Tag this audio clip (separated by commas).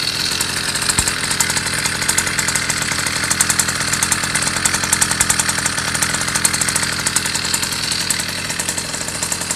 Medium engine (mid frequency), Engine, Vehicle